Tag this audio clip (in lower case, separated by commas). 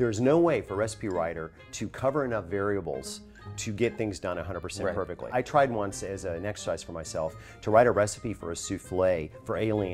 speech, music